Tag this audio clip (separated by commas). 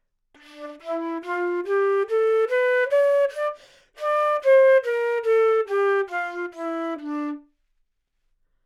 Music, Musical instrument, woodwind instrument